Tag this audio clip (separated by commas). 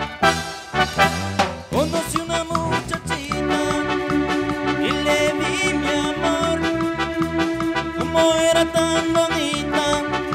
Music